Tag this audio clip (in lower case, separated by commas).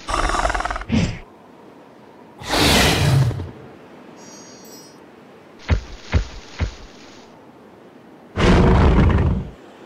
dinosaurs bellowing